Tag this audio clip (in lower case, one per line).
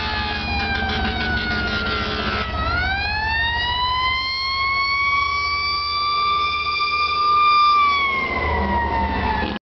heavy engine (low frequency)
vehicle